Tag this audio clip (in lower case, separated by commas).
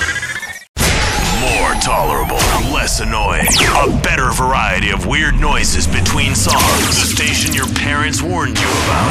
music, speech